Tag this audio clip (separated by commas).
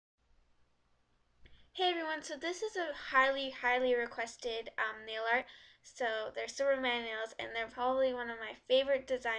Speech